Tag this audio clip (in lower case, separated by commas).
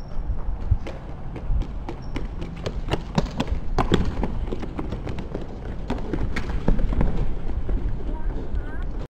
speech